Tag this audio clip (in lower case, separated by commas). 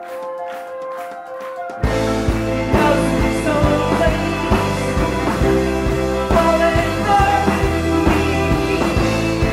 psychedelic rock, music, singing